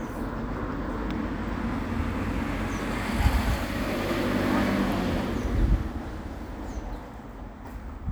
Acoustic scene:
residential area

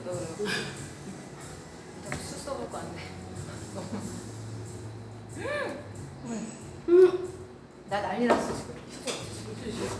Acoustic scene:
cafe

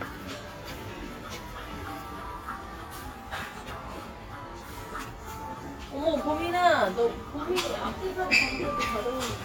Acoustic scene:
crowded indoor space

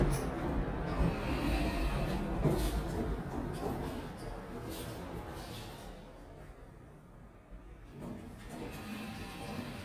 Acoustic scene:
elevator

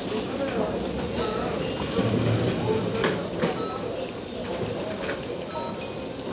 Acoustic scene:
crowded indoor space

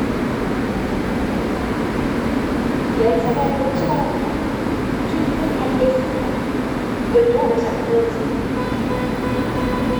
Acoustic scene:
subway station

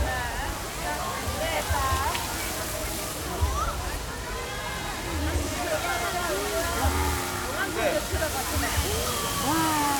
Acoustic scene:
park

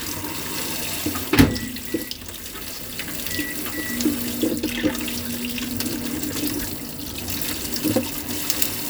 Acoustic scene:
kitchen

